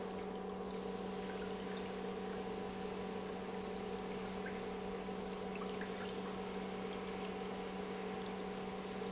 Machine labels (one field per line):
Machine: pump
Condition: normal